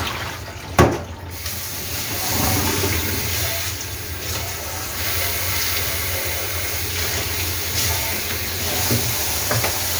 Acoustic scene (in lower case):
kitchen